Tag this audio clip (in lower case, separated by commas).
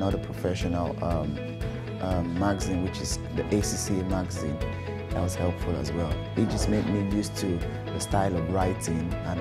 speech, music